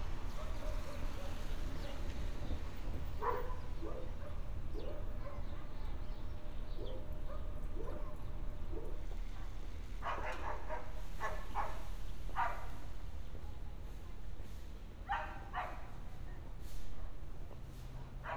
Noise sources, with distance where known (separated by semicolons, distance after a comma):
dog barking or whining